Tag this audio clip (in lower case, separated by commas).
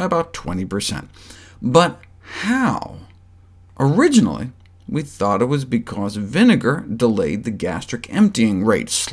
speech